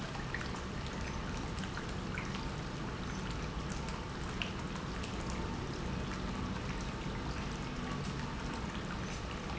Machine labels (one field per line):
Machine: pump